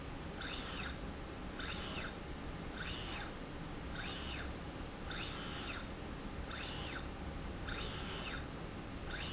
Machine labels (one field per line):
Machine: slide rail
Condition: normal